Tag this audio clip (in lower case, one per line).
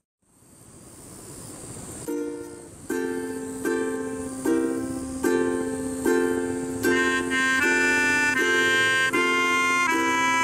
music